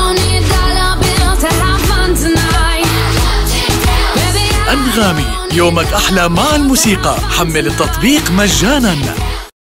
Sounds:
Speech, Happy music, Music

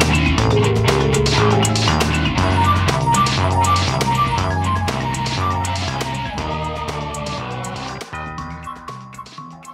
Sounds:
Funny music, Music

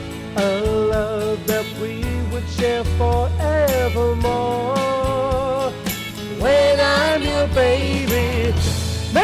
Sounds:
Rhythm and blues, Music

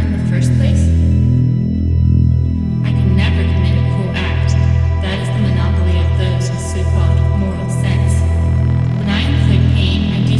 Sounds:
Music, Speech

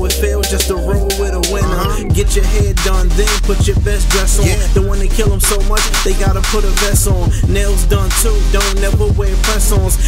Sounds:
Music

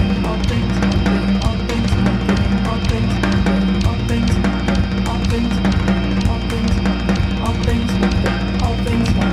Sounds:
Music

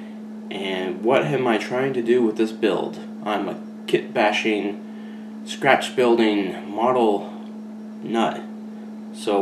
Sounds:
Speech

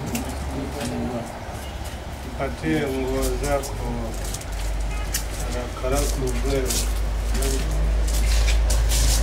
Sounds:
Speech

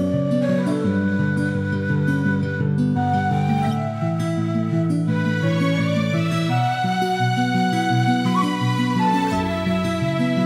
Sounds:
Music

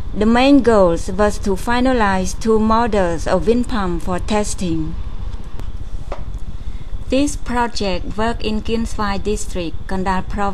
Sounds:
Speech

